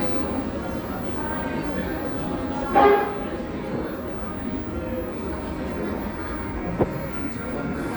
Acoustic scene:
cafe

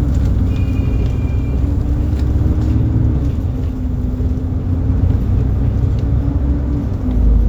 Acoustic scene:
bus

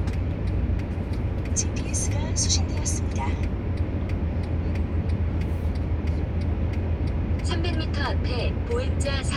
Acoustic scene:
car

